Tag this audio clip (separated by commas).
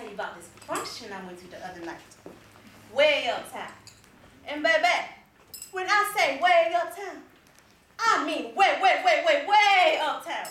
monologue, Speech